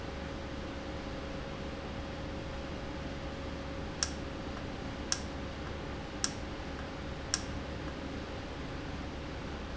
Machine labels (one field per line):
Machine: valve